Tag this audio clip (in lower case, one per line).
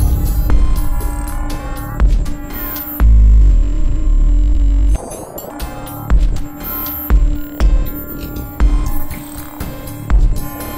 techno
music
electronica
electronic music